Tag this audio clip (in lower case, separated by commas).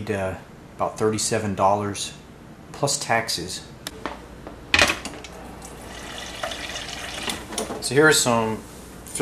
fill (with liquid), speech, water